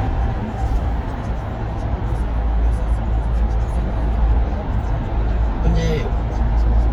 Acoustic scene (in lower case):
car